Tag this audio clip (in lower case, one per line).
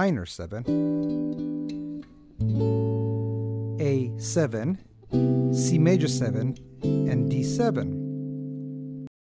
plucked string instrument
speech
musical instrument
acoustic guitar
strum
music
guitar